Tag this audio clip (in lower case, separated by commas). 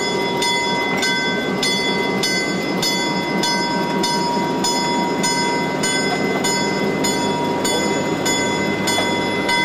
train horning